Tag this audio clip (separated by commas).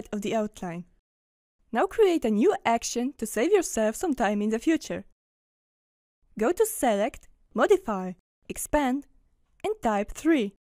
Speech